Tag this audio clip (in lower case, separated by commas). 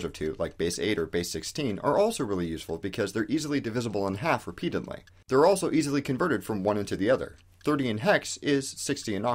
speech